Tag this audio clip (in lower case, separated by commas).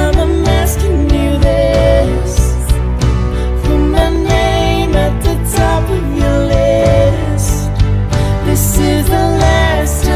music